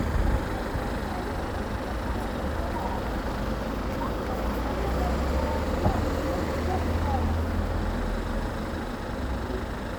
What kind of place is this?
street